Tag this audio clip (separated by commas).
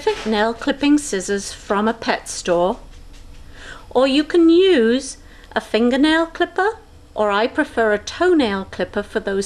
Speech